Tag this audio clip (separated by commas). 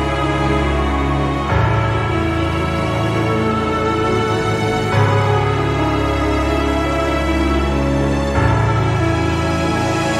Music